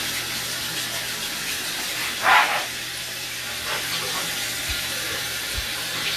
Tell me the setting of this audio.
restroom